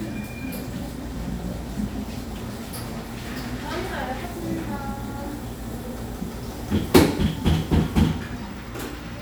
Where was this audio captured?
in a cafe